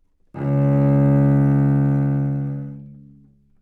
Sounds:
Bowed string instrument, Musical instrument, Music

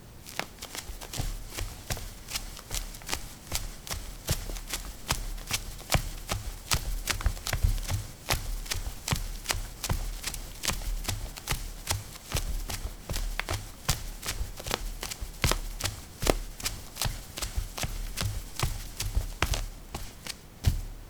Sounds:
Run

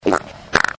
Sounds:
Fart

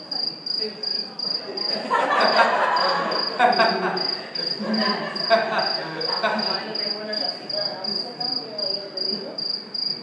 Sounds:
Cricket, Insect, Wild animals, Animal

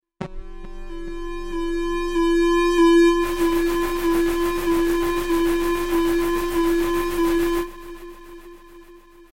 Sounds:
Alarm

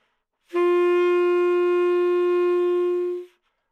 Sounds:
Musical instrument, woodwind instrument, Music

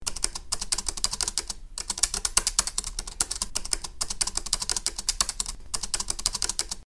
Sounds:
Computer keyboard, home sounds, Typing

